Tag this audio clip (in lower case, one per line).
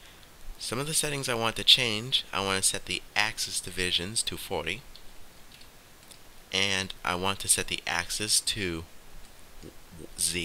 speech